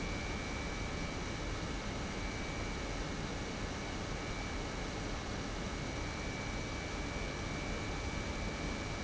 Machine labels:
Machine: pump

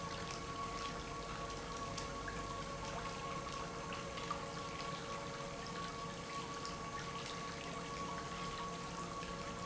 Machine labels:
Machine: pump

